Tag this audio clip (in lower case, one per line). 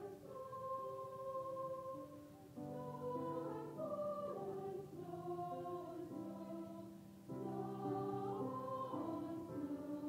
choir
music